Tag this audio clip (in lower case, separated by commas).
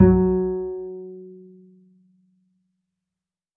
bowed string instrument, musical instrument, music